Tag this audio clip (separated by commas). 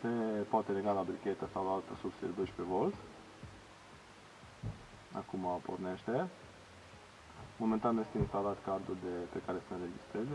Speech